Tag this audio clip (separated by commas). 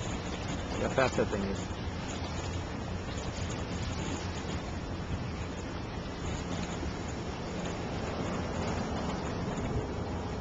Water vehicle, Sailboat, Speech, Vehicle